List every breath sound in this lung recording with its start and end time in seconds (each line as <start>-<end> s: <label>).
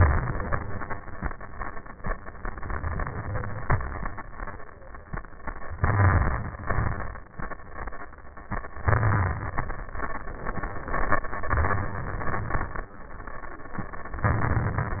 0.00-0.53 s: exhalation
0.00-0.53 s: crackles
2.92-3.68 s: inhalation
3.68-4.36 s: exhalation
3.68-4.36 s: crackles
5.81-6.65 s: wheeze
5.84-6.66 s: inhalation
6.67-7.51 s: crackles
6.69-7.52 s: exhalation
8.89-9.66 s: inhalation
8.89-9.66 s: wheeze
9.97-10.64 s: exhalation
9.97-10.64 s: crackles
11.48-12.25 s: inhalation
11.48-12.25 s: wheeze
12.28-12.96 s: exhalation
12.28-12.96 s: crackles
14.28-15.00 s: inhalation
14.28-15.00 s: crackles